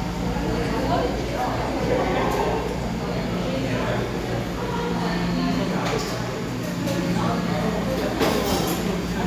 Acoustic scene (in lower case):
cafe